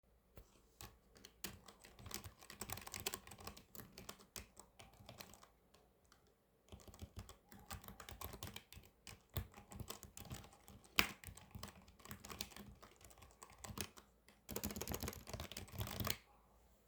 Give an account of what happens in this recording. I sat at my desk and typed on the keyboard for a while.